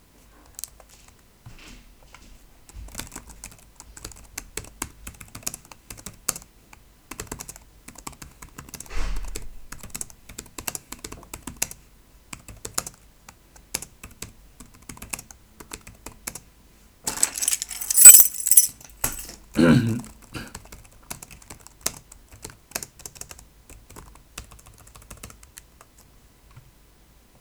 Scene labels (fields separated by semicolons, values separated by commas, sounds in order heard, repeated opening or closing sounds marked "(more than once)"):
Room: office; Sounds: keyboard typing, keys